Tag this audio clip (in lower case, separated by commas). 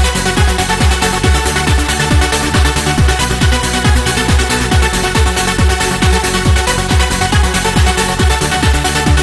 music, sampler